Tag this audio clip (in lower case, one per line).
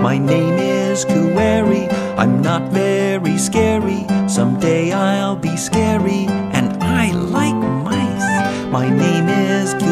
music for children
music